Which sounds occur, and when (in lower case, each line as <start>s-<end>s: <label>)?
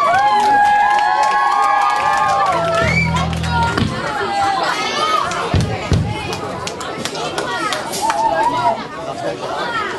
0.0s-3.2s: cheering
0.0s-9.9s: crowd
0.0s-3.8s: clapping
3.4s-9.9s: speech noise
5.2s-5.3s: clapping
5.5s-5.6s: clapping
5.8s-6.0s: clapping
6.2s-6.4s: clapping
6.6s-8.2s: clapping